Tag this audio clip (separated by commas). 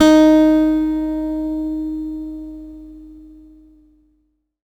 Plucked string instrument, Musical instrument, Music, Guitar, Acoustic guitar